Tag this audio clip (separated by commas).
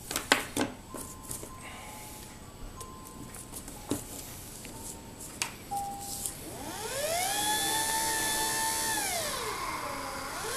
Engine, Music